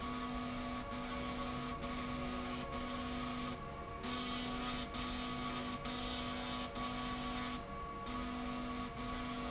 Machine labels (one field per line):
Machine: slide rail